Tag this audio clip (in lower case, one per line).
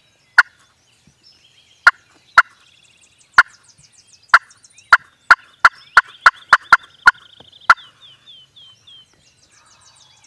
turkey gobbling